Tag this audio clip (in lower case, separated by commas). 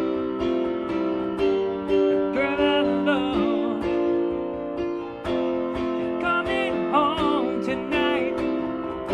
music, keyboard (musical), piano